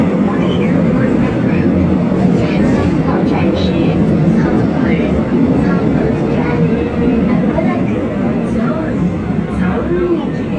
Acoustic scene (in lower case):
subway train